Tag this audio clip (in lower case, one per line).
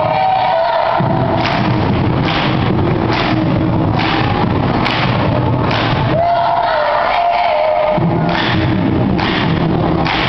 singing
choir
thud